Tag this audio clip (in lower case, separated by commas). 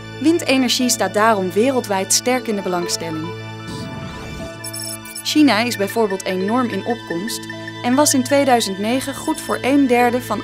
music, speech